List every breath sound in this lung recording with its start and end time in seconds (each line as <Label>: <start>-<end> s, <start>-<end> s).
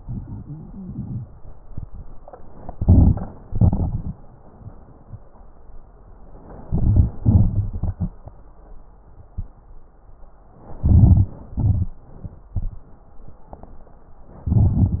Inhalation: 2.72-3.47 s, 6.60-7.23 s, 10.79-11.40 s, 14.49-15.00 s
Exhalation: 3.47-4.22 s, 7.28-8.25 s, 11.43-12.04 s
Crackles: 2.67-3.42 s, 3.47-4.22 s, 6.60-7.21 s, 7.28-8.25 s, 10.79-11.40 s, 11.43-12.04 s, 14.49-15.00 s